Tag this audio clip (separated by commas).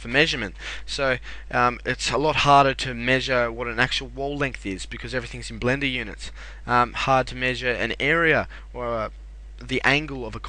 Speech